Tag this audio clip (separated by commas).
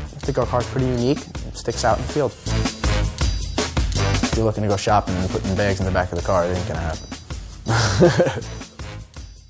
Music, Speech